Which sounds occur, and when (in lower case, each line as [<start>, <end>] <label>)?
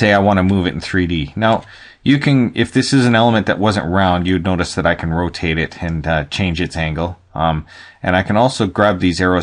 [0.00, 9.42] background noise
[0.01, 1.58] man speaking
[1.62, 1.94] breathing
[1.93, 7.14] man speaking
[7.30, 7.64] man speaking
[7.65, 7.97] breathing
[7.99, 9.42] man speaking